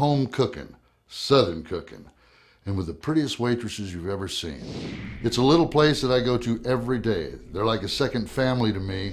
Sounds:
speech

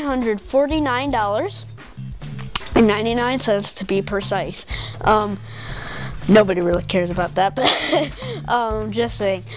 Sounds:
speech, music

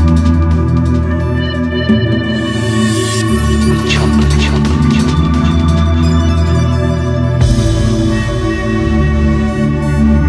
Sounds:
music

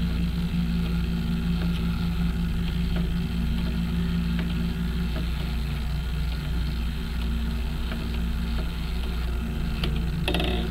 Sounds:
tick, tick-tock

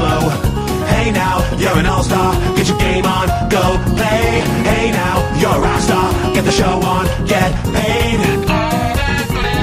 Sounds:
music

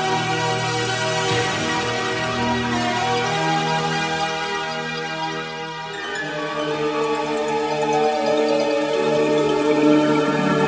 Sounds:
music

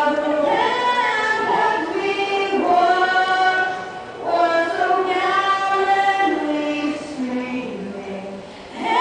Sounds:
female singing

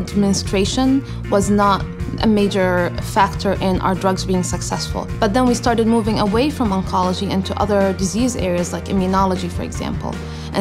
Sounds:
speech, music

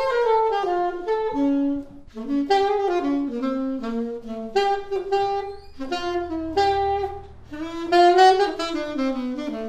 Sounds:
jazz, woodwind instrument, music, brass instrument, musical instrument, playing saxophone, saxophone

